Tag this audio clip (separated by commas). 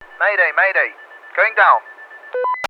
Speech, Human voice, Male speech